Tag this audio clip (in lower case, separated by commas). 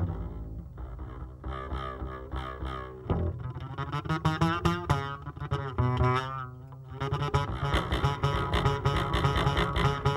music, musical instrument